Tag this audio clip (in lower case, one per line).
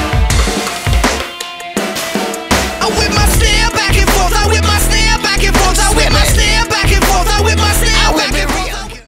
music